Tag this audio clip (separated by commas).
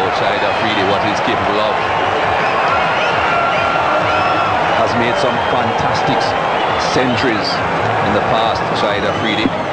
Speech